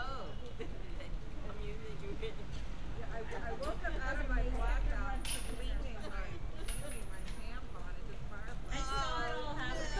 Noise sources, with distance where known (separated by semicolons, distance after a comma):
person or small group talking, near